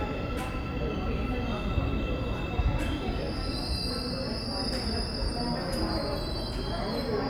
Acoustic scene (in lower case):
subway station